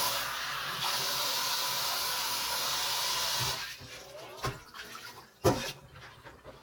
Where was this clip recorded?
in a kitchen